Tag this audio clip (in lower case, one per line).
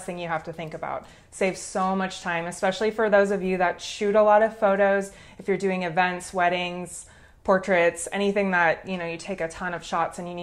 speech